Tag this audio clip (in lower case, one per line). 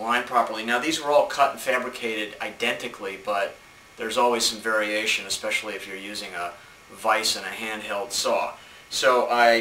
speech